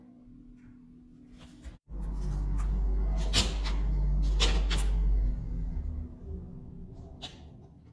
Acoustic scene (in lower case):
elevator